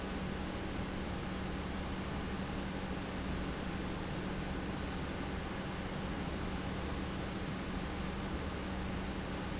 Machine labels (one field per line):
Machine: pump